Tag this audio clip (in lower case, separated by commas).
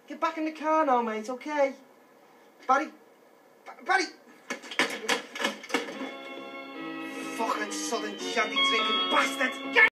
music, speech